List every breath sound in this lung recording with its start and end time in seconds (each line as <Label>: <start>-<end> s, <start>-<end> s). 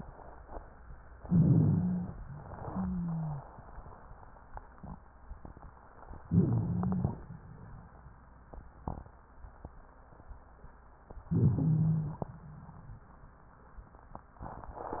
Inhalation: 1.19-2.20 s, 6.25-7.14 s, 11.29-12.18 s
Wheeze: 1.19-2.20 s, 2.58-3.47 s, 6.25-7.14 s, 11.29-12.18 s